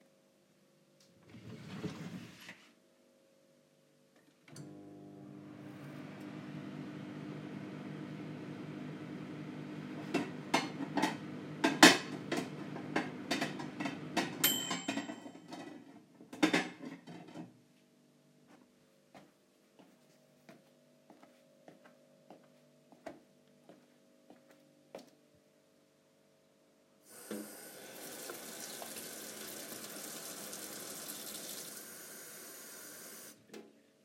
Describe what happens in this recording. A drawer was opened and the microwave started working with a partial overlap of dishes clattering. The drawer was then closed, footsteps moved across the kitchen, and the tap was turned on.